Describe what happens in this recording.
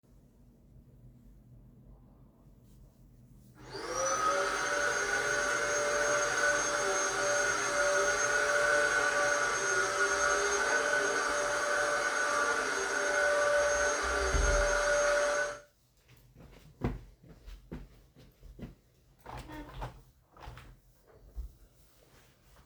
I turned on the vacumm cleaner and started vacumming. After that i walked to the window and opened it.